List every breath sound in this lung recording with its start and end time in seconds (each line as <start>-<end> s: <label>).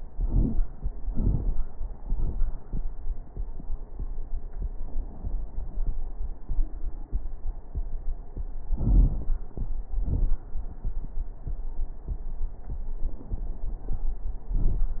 0.00-0.63 s: inhalation
0.00-0.63 s: crackles
1.06-1.60 s: exhalation
1.06-1.60 s: crackles
8.75-9.33 s: inhalation
8.75-9.33 s: crackles
9.94-10.37 s: exhalation
9.94-10.37 s: crackles